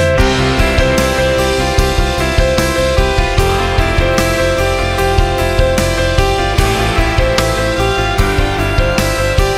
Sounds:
music

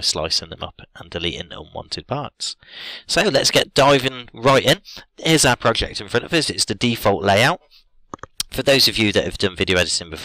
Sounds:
speech

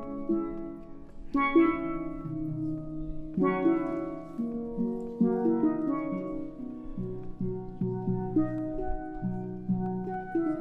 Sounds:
playing steelpan

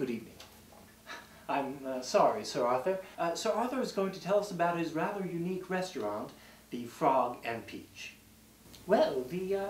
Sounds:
speech

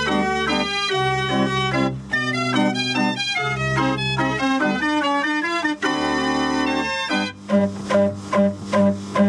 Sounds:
organ

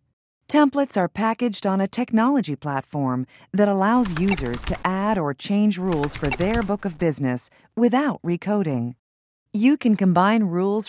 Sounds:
speech

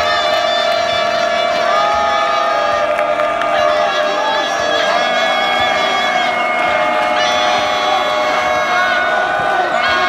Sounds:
inside a public space

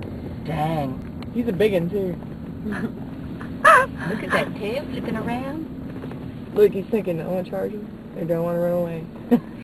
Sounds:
speech

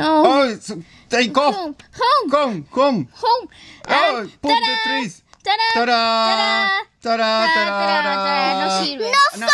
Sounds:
speech

